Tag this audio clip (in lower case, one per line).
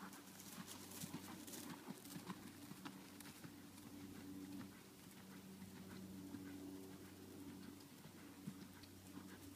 clip-clop